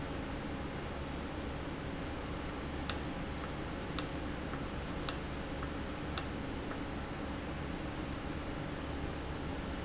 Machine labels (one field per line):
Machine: valve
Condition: normal